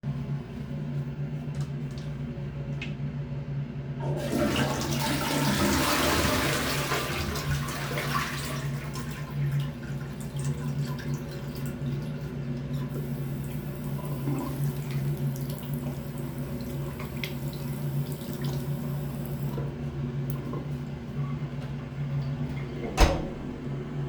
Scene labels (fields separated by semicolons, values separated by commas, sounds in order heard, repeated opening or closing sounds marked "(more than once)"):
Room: lavatory; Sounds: toilet flushing, running water, door